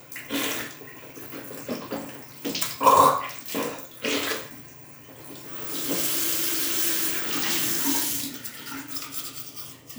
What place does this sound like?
restroom